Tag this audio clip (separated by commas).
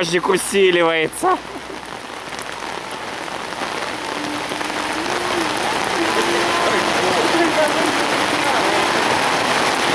Raindrop, Rain on surface, Rain, raining